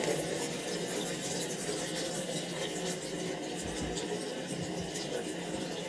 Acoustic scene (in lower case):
restroom